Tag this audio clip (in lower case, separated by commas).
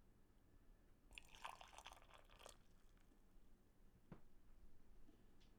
liquid